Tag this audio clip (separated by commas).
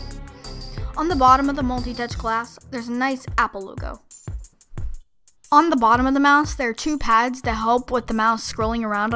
Speech, Music